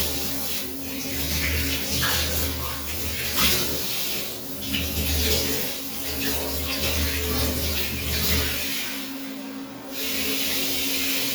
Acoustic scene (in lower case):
restroom